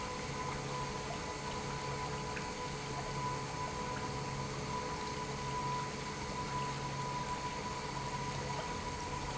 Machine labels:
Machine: pump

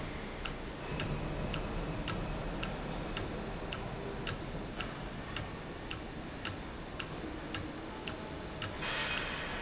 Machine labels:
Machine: valve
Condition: normal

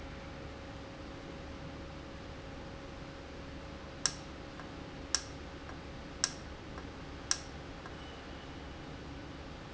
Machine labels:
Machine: valve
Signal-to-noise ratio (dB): 0 dB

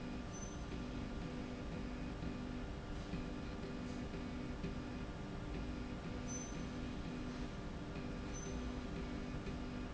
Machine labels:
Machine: slide rail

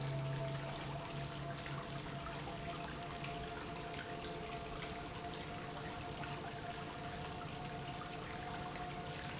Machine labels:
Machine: pump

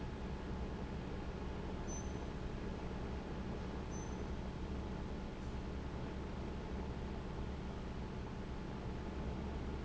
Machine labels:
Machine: fan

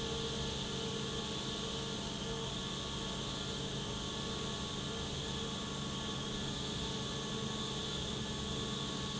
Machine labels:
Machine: pump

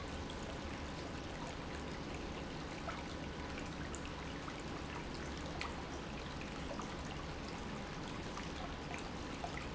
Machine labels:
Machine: pump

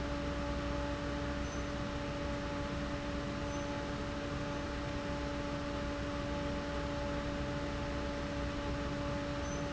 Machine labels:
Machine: fan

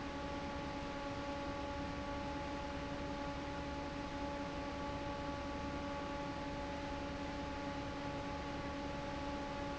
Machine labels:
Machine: fan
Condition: normal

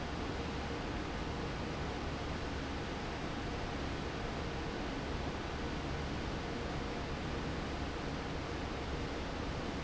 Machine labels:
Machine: fan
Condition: normal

